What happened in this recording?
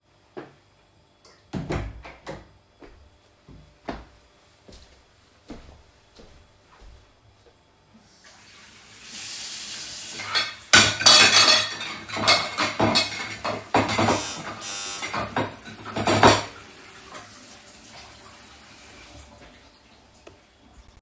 I am washing dishes by hand while water is running. While I am doing this, the doorbell rings.